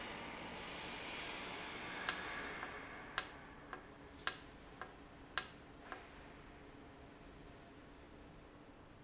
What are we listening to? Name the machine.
valve